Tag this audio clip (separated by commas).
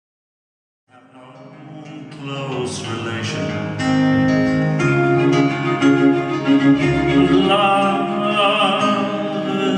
Music, String section, Singing, Double bass